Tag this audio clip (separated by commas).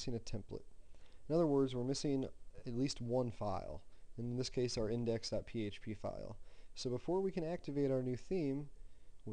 Speech